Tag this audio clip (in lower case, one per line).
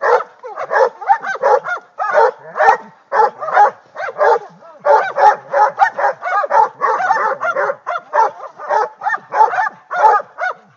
dog baying